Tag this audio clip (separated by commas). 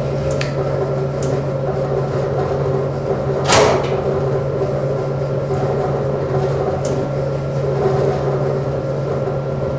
inside a large room or hall